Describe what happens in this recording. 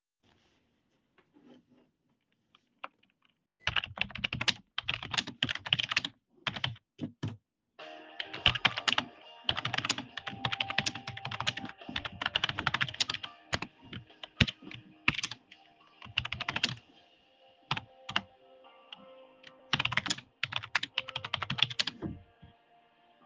I type on keyboard, phone starts ringing